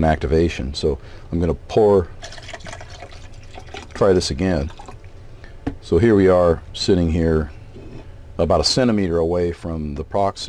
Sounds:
speech
inside a small room

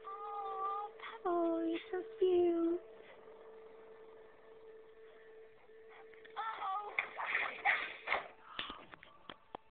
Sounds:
speech

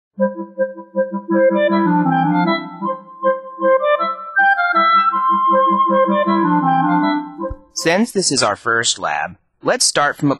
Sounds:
keyboard (musical)

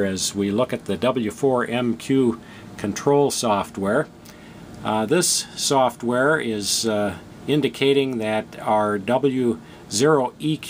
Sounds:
speech

